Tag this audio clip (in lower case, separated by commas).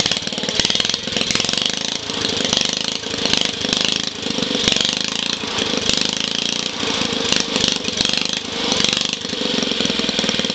engine